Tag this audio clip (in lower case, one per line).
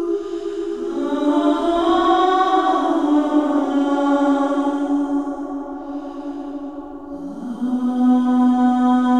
music
scary music